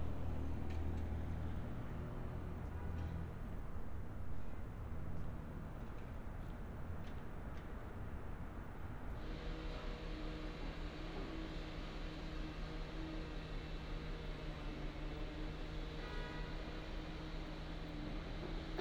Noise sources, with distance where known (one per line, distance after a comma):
car horn, far